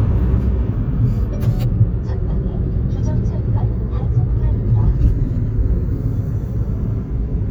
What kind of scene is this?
car